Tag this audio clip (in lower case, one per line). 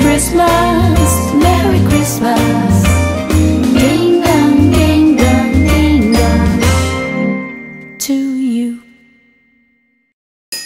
ding